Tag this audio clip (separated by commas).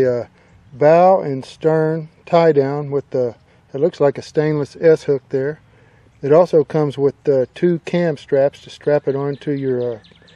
Speech